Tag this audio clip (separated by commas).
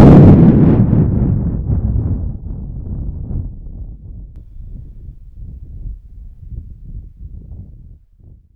Thunderstorm, Thunder